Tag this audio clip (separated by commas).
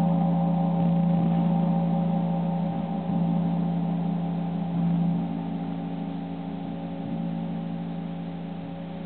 playing gong